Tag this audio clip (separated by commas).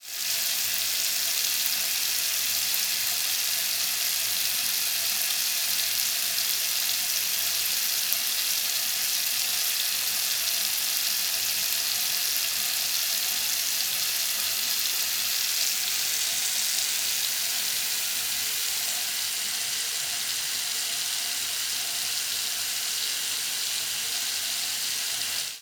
faucet, home sounds, Liquid